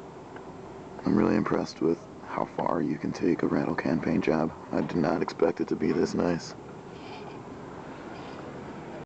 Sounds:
speech

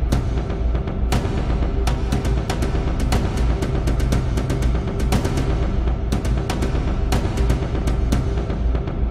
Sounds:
music

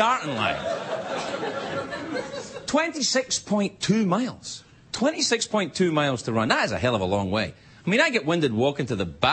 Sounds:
monologue
speech

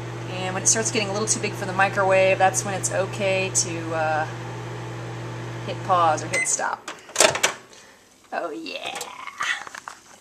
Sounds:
inside a small room
microwave oven
speech

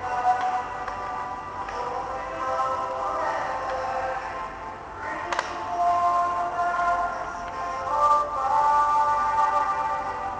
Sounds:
music

